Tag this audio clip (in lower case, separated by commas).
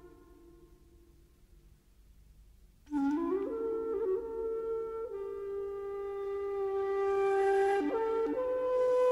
flute, playing flute, music